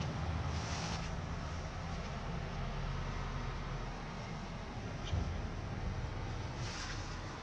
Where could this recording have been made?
in a residential area